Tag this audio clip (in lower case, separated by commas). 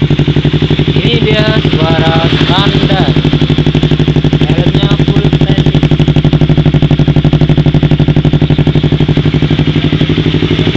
speech